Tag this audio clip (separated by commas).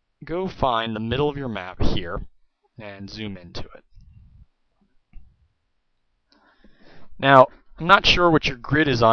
Speech